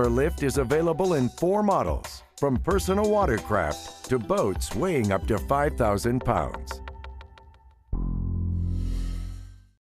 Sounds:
Music, Speech

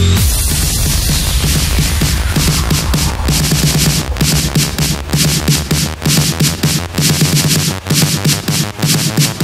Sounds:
Electronic dance music, Music

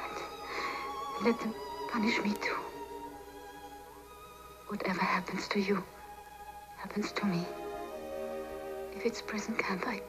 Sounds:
Speech, Music

